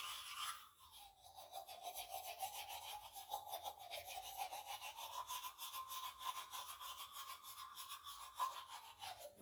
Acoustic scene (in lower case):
restroom